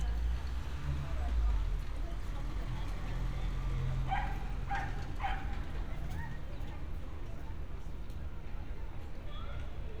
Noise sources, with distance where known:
engine of unclear size, far
unidentified human voice, far
dog barking or whining, far

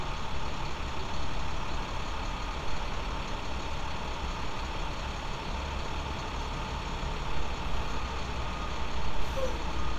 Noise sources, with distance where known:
large-sounding engine, near

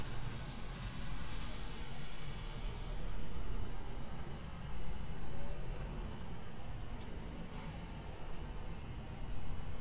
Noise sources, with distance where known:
background noise

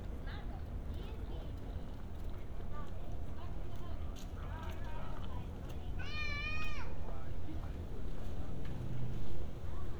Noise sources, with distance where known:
person or small group talking

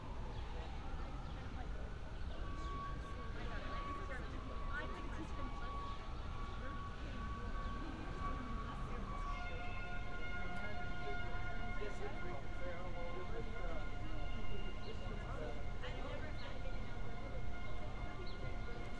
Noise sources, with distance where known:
unidentified alert signal, far
person or small group talking

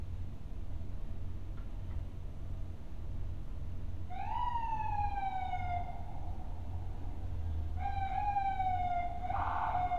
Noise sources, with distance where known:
siren

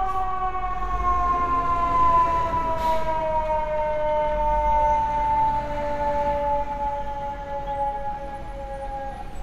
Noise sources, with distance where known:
siren, near

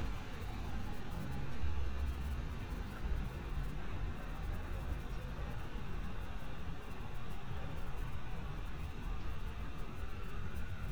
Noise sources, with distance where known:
siren, far

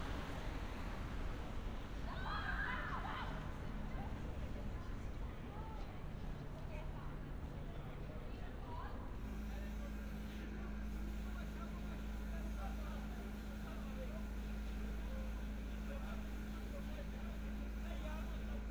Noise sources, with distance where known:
person or small group shouting

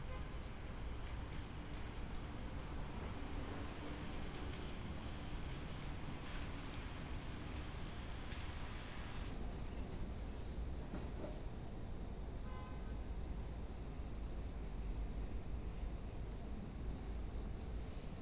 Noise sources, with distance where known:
car horn

